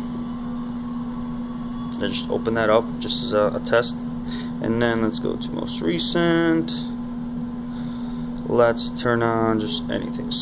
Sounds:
Speech, Microwave oven

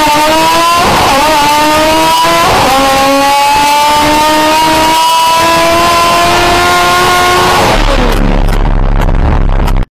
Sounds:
Vehicle, Car, Motor vehicle (road)

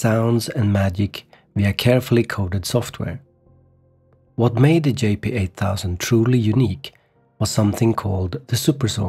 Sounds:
Speech

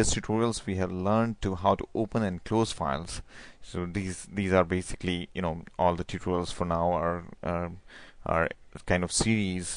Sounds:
Speech

